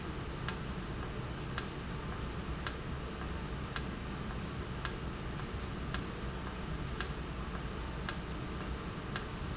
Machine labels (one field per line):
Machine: valve